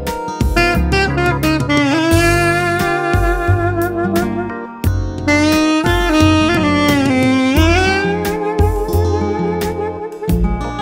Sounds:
playing saxophone

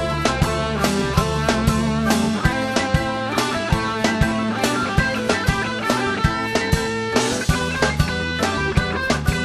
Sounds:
music
ska
progressive rock
rock music
musical instrument

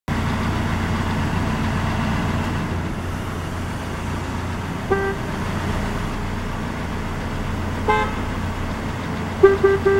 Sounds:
honking

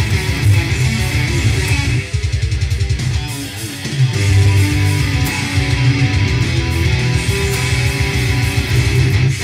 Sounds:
musical instrument
music
acoustic guitar
plucked string instrument
guitar

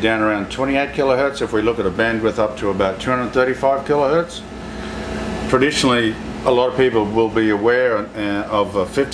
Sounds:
speech

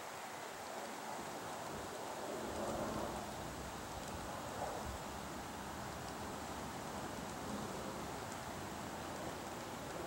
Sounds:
woodpecker pecking tree

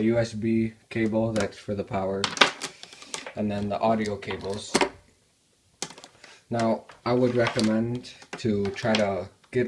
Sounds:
speech

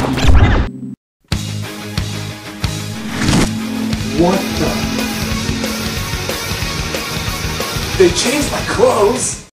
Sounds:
male speech
narration
music
speech

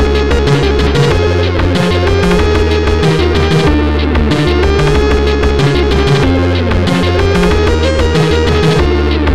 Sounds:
independent music
music

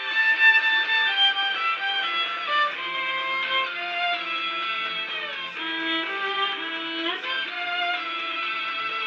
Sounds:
music
violin
musical instrument

